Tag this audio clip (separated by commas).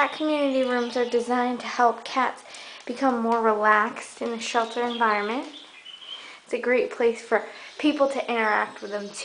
Animal, Speech